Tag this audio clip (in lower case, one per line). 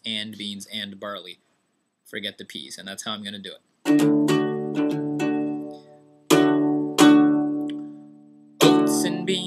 male singing
speech
music